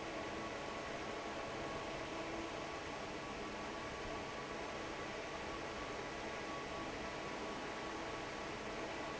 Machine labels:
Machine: fan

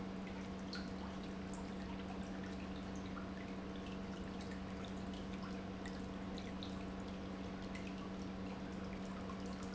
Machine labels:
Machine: pump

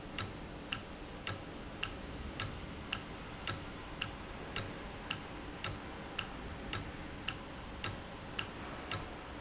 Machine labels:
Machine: valve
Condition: normal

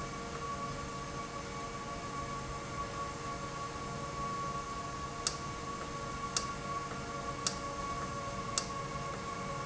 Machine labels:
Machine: valve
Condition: normal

